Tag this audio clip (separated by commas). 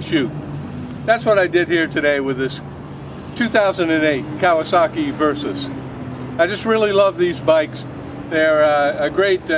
Speech